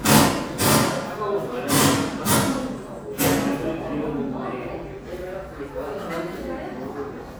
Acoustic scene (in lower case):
crowded indoor space